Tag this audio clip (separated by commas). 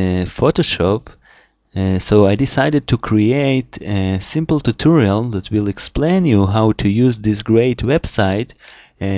Speech synthesizer